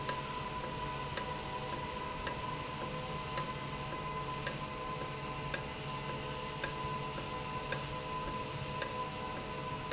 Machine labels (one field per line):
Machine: valve